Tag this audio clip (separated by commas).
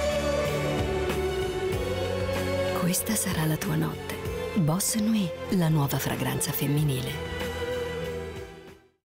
Speech, Music